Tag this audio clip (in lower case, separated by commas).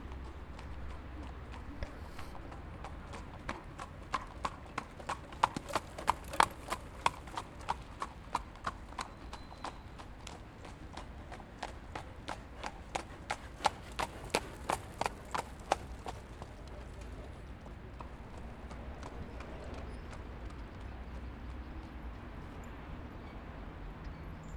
animal, livestock